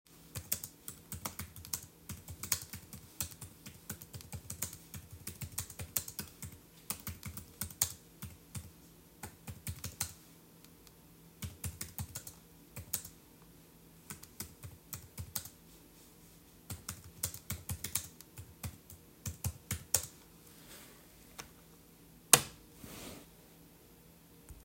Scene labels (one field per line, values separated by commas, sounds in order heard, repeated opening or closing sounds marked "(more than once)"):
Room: bedroom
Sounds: keyboard typing